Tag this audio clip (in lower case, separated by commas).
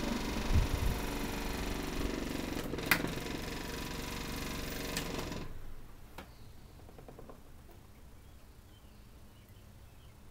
mechanical fan